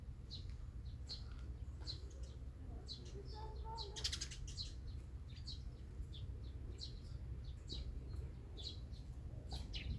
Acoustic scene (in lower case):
park